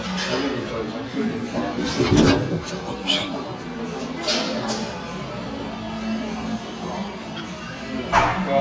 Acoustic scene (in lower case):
cafe